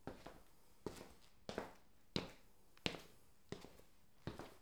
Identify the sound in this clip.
footsteps